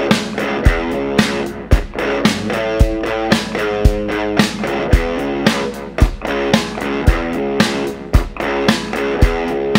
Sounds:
music

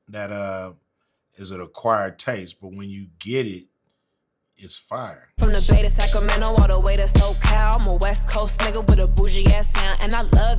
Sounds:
rapping

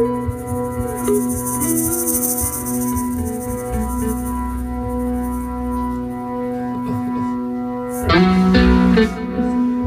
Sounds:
music, ambient music

